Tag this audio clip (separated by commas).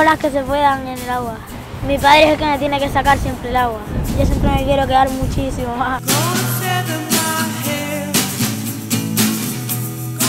Speech, Music